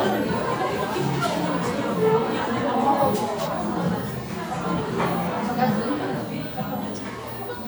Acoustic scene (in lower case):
crowded indoor space